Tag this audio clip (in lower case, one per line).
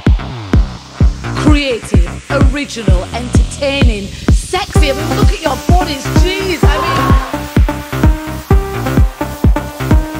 sizzle
speech
music